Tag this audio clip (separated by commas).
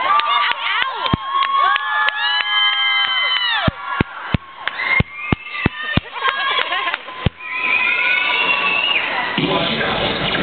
Speech